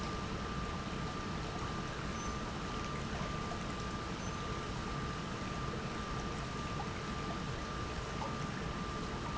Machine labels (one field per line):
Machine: pump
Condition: normal